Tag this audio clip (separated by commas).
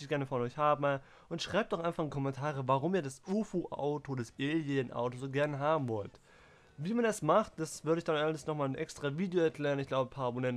Speech